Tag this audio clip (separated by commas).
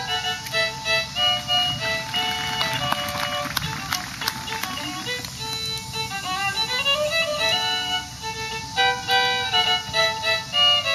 Music, Independent music